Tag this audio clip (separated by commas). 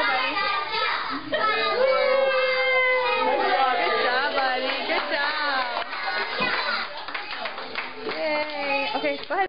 Speech